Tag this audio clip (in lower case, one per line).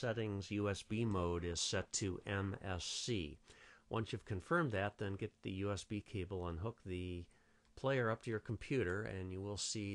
speech